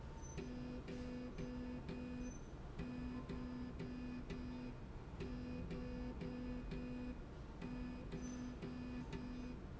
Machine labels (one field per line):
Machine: slide rail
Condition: normal